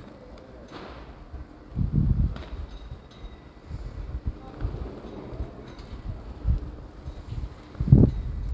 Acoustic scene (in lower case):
residential area